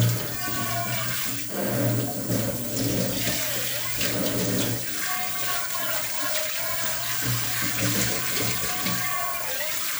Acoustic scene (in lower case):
kitchen